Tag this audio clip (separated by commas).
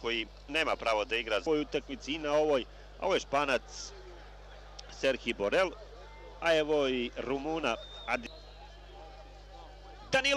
Speech